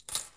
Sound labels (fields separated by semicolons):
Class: object falling; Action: being thrown; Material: metal